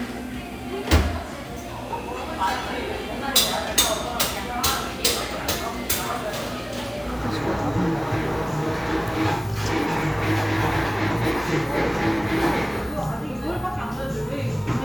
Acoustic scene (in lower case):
cafe